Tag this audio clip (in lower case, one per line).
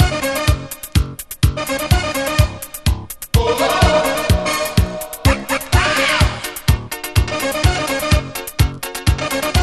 music